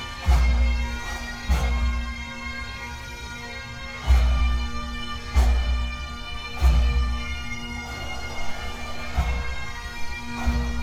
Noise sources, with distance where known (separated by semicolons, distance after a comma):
music from an unclear source, near